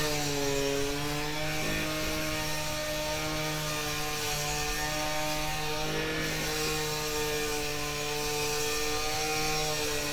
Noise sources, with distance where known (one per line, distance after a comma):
unidentified powered saw, near